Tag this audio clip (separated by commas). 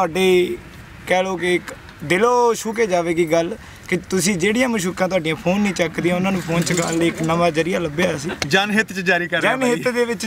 Speech